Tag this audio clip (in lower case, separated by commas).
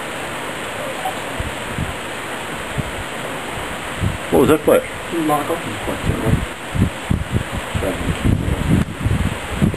speech